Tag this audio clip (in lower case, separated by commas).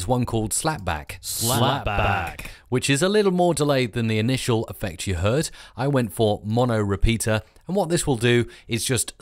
speech, speech synthesizer